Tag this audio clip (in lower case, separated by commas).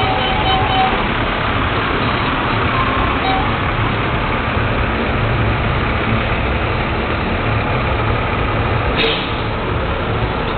outside, urban or man-made, vehicle